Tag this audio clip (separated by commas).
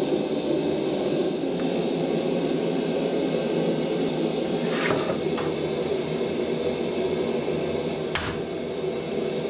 forging swords